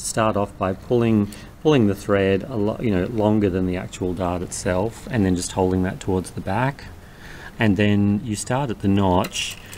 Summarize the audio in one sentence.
A man talking then a sewing machine operating